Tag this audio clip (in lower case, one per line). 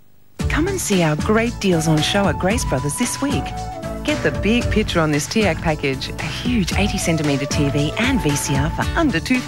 speech
music